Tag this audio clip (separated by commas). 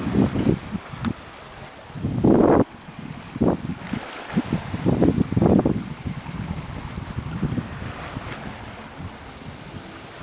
outside, rural or natural